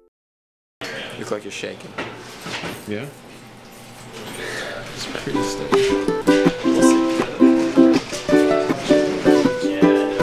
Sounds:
Music, Speech

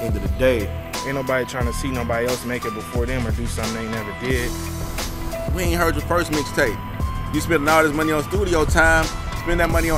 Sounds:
Music, Speech

